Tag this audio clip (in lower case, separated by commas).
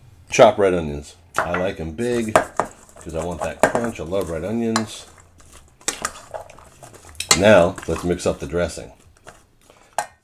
speech, inside a small room